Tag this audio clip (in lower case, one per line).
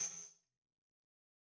musical instrument
percussion
tambourine
music